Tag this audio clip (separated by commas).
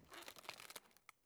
Wood, Crushing